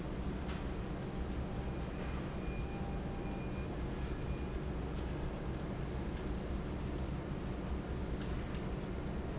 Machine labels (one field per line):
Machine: fan